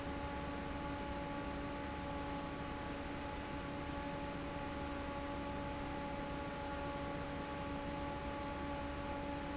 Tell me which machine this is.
fan